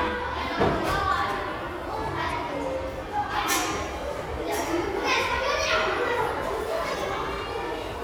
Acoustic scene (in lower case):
crowded indoor space